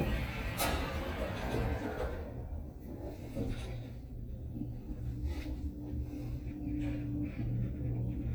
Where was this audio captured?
in an elevator